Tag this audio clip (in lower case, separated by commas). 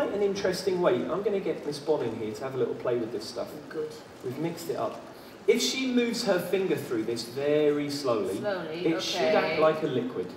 speech, man speaking